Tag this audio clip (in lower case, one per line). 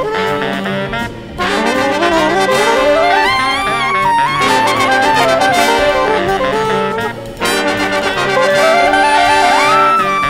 playing clarinet
clarinet